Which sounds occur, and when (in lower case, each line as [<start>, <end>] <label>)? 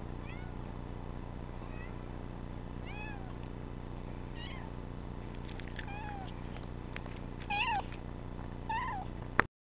[0.00, 9.48] noise
[0.19, 0.54] meow
[1.56, 2.00] meow
[2.75, 3.28] meow
[3.40, 3.54] generic impact sounds
[4.31, 4.74] meow
[5.19, 5.94] generic impact sounds
[5.86, 6.37] meow
[6.23, 6.38] generic impact sounds
[6.50, 6.70] generic impact sounds
[6.85, 6.97] generic impact sounds
[7.12, 7.25] generic impact sounds
[7.38, 7.49] generic impact sounds
[7.46, 7.93] meow
[7.88, 8.01] generic impact sounds
[8.67, 9.10] meow
[9.38, 9.49] generic impact sounds